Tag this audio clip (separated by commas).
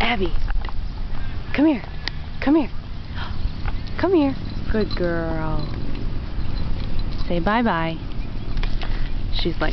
Speech